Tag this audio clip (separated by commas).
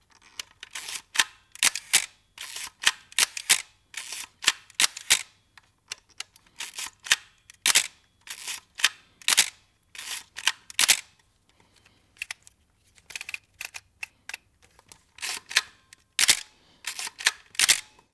Camera, Mechanisms